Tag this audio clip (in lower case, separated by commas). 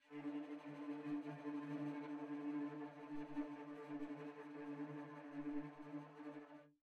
bowed string instrument, music, musical instrument